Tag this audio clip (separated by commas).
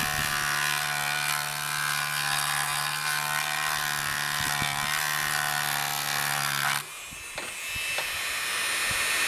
Tools